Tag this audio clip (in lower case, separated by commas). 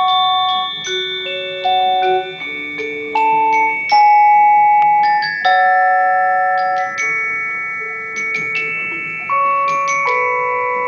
mallet percussion, xylophone, glockenspiel